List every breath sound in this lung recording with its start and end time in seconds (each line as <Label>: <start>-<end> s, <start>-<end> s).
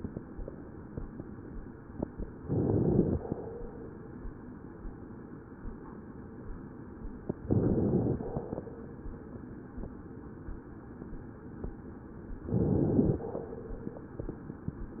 Inhalation: 2.45-3.23 s, 7.50-8.31 s, 12.48-13.30 s